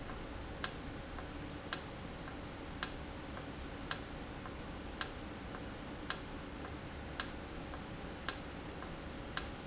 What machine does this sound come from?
valve